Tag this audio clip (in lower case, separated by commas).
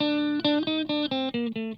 plucked string instrument, guitar, music, electric guitar, musical instrument